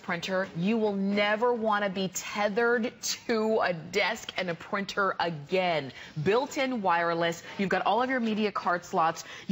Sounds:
Speech

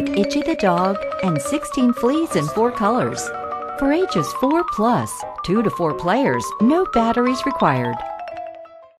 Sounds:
Speech, Music

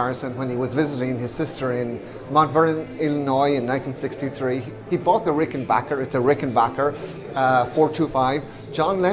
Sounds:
Music, Speech

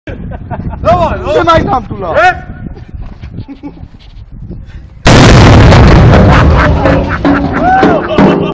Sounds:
Speech, outside, urban or man-made

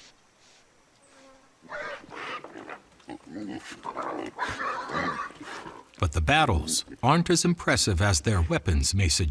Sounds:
Pig, Animal

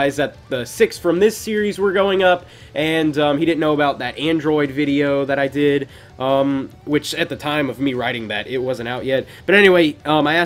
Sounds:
Speech

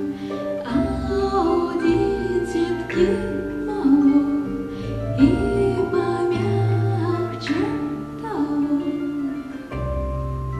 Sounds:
Music, Lullaby

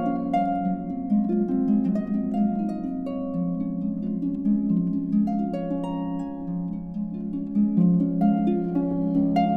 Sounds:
playing harp, Harp, Music

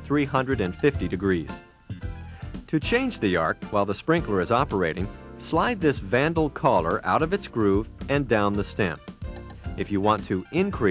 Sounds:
Speech, Music

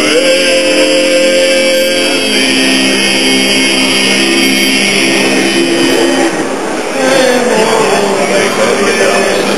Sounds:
Music

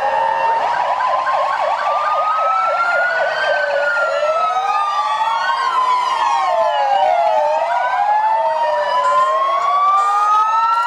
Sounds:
ambulance siren, Vehicle, Ambulance (siren)

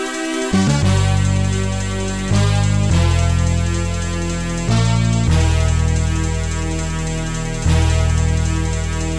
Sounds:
Soundtrack music, Music

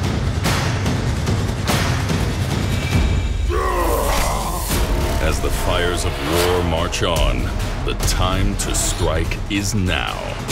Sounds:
people marching

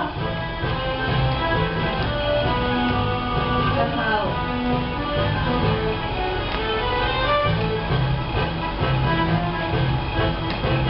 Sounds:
Walk, Music

